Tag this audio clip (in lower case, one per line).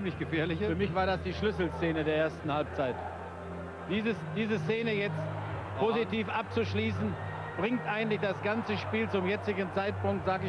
speech